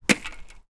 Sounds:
Tools, Hammer

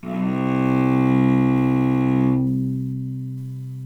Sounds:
Musical instrument, Bowed string instrument, Music

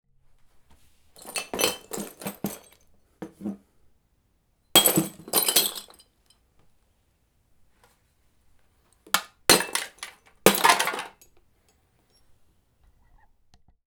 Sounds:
Glass, Shatter

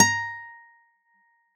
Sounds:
Acoustic guitar, Musical instrument, Guitar, Music, Plucked string instrument

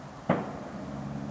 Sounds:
Fireworks, Explosion

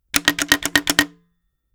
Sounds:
Telephone, Alarm

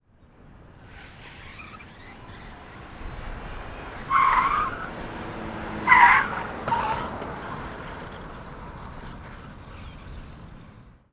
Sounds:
Car, Vehicle, Motor vehicle (road)

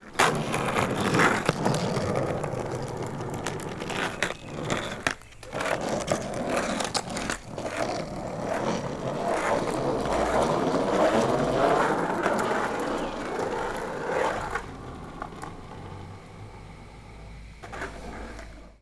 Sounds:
Skateboard, Vehicle

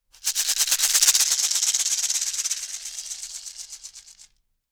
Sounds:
Rattle (instrument), Musical instrument, Music, Percussion

